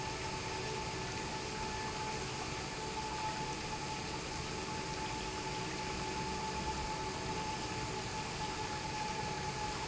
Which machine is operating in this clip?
pump